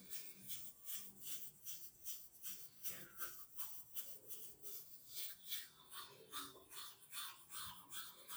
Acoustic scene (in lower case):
restroom